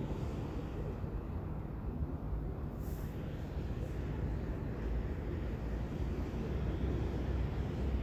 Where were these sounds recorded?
in a residential area